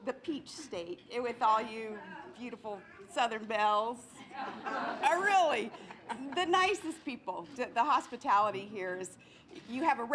Women with southern accent and muffled crowd